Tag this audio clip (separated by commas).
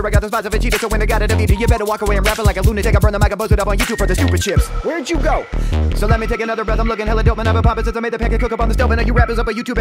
rapping